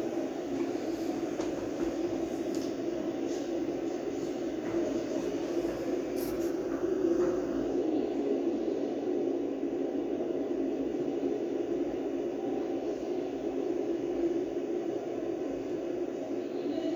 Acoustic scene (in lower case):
subway station